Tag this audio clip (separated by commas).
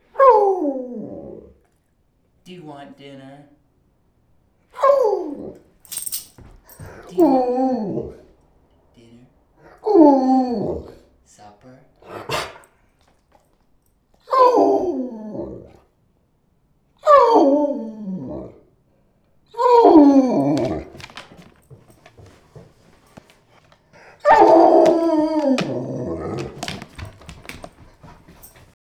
Dog, Domestic animals, Animal